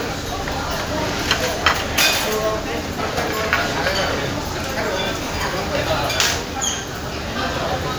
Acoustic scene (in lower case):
crowded indoor space